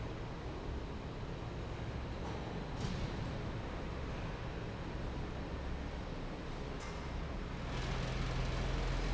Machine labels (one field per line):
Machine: fan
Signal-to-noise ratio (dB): -6 dB